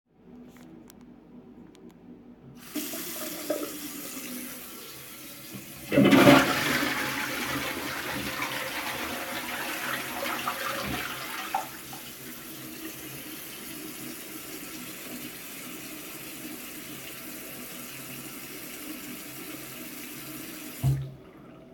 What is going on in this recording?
The sink is turned on and while the water runs the toilet is flushed.